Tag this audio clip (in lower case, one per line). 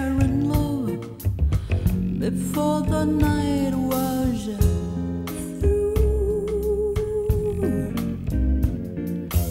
music